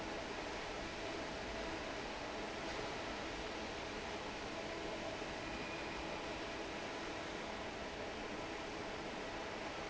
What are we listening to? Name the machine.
fan